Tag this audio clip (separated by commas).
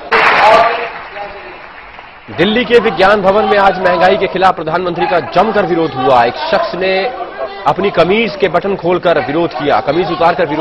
monologue, Speech, man speaking